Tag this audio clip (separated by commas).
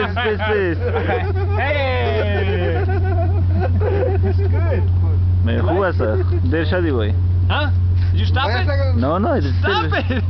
Speech